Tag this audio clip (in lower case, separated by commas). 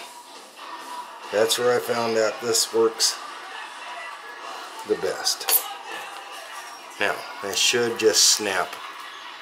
speech, music